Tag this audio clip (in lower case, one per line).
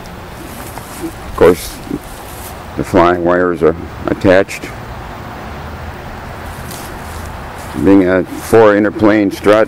speech